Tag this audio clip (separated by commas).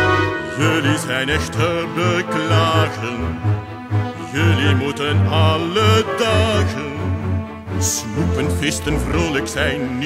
Music